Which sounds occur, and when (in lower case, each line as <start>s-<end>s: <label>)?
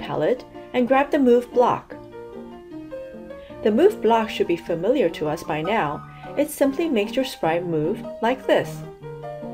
0.0s-0.4s: female speech
0.0s-9.5s: music
0.5s-0.7s: breathing
0.7s-2.0s: female speech
3.3s-3.6s: breathing
3.7s-6.0s: female speech
6.1s-6.3s: breathing
6.4s-8.0s: female speech
8.2s-8.9s: female speech